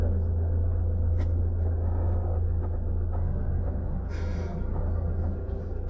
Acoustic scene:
car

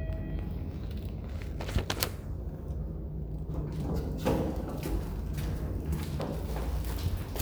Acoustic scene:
elevator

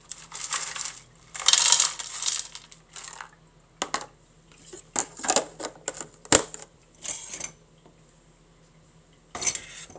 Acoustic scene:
kitchen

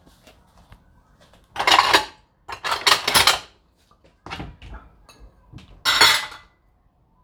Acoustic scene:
kitchen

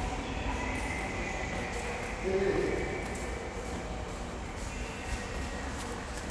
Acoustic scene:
subway station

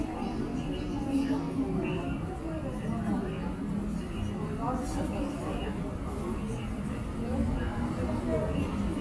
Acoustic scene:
subway station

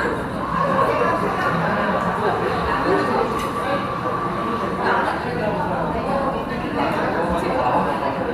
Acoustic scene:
cafe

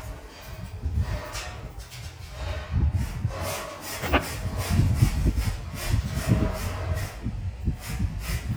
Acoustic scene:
elevator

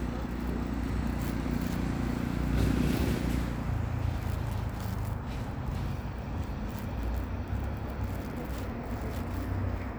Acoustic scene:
residential area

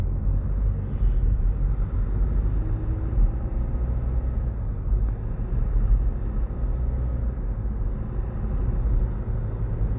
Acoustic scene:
car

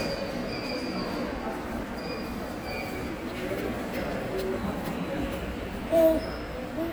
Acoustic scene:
subway station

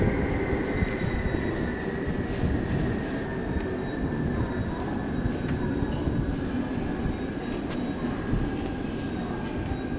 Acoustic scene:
subway station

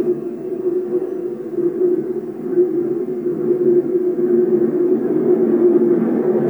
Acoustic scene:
subway train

